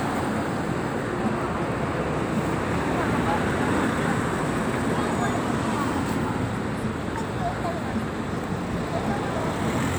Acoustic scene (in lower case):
street